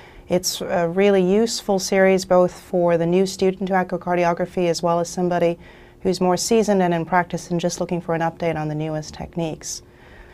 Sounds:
speech

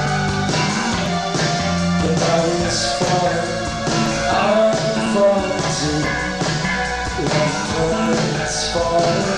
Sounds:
music
inside a large room or hall

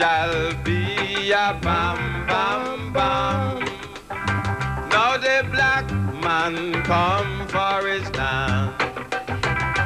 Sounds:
music

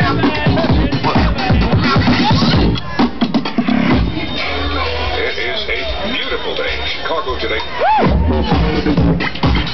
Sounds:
sound effect
music

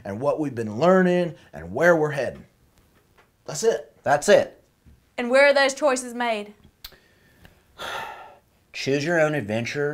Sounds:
speech

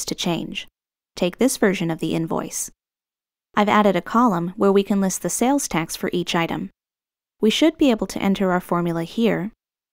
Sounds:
speech

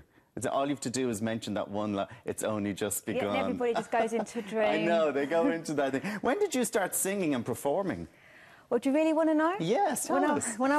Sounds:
speech

